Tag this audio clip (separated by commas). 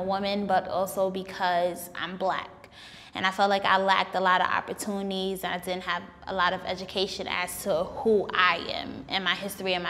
Speech